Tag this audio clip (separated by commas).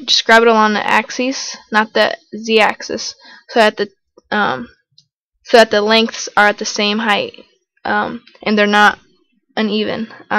Speech